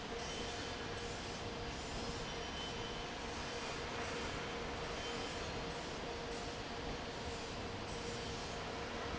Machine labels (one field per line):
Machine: fan